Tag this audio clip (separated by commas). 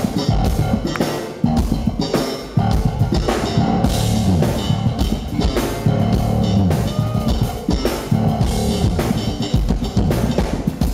Music